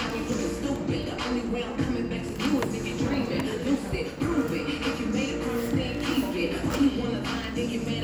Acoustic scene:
cafe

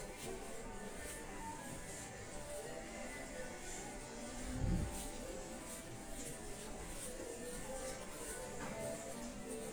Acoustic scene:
crowded indoor space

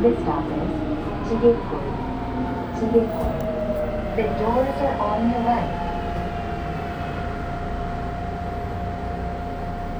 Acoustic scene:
subway train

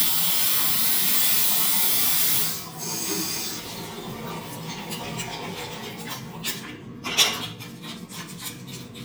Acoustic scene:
restroom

